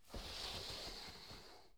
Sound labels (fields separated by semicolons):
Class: furniture moving; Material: wooden; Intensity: medium